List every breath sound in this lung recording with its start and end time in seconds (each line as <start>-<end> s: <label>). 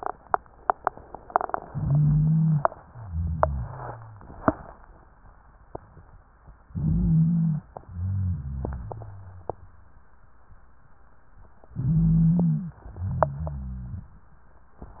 1.62-2.66 s: inhalation
1.62-2.66 s: wheeze
2.92-4.24 s: exhalation
2.92-4.24 s: wheeze
6.68-7.66 s: inhalation
6.68-7.66 s: wheeze
7.76-9.96 s: exhalation
7.76-9.96 s: wheeze
11.76-12.80 s: inhalation
11.76-12.80 s: wheeze
12.86-14.14 s: exhalation
12.86-14.14 s: wheeze